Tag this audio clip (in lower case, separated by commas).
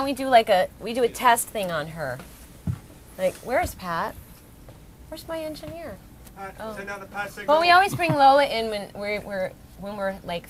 speech